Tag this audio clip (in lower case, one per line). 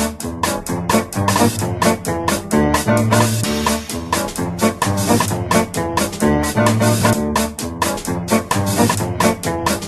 music